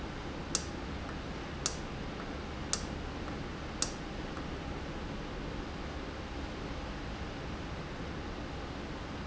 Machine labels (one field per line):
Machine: valve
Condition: normal